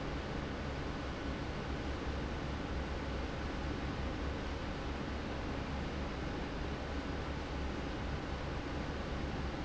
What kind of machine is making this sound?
fan